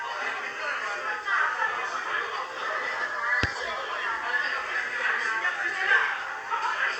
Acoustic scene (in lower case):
crowded indoor space